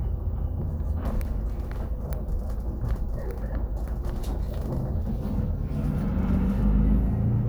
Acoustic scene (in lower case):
bus